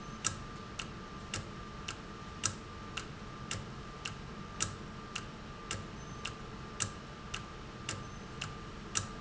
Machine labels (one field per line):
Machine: valve